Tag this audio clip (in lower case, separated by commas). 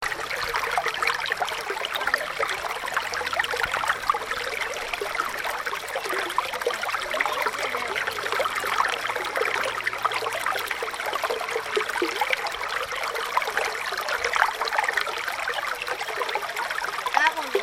water, pour, liquid, kid speaking, car, stream, vehicle, car passing by, motor vehicle (road), speech, dribble, human voice